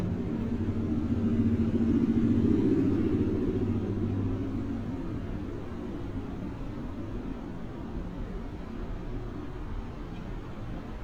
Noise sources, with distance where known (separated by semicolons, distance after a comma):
medium-sounding engine